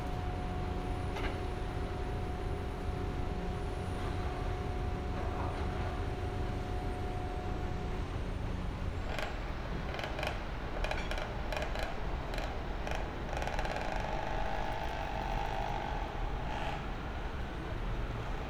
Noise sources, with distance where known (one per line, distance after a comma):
engine of unclear size